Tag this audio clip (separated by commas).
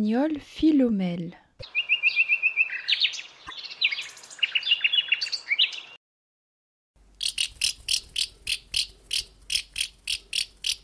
mynah bird singing